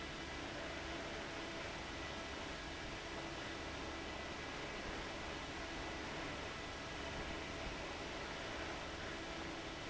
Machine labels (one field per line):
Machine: fan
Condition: abnormal